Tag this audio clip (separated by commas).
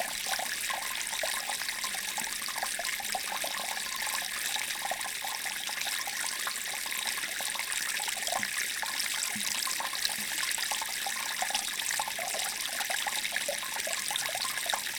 Stream, Water